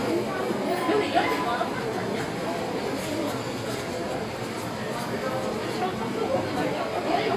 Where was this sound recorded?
in a crowded indoor space